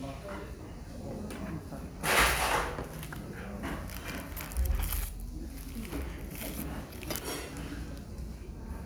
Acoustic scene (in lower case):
restaurant